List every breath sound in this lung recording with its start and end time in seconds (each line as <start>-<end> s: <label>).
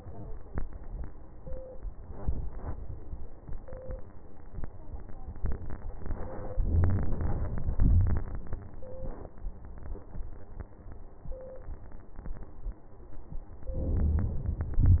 6.62-7.74 s: inhalation
7.73-8.70 s: exhalation
13.75-14.72 s: inhalation
14.72-15.00 s: exhalation